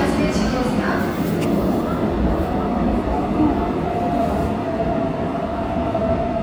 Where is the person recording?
in a subway station